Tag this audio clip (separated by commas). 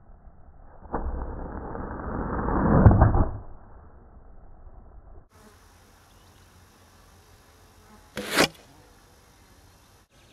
Arrow